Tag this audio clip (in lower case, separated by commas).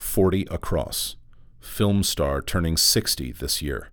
speech, male speech, human voice